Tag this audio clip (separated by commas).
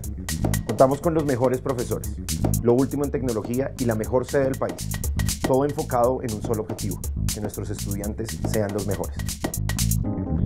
Speech, Music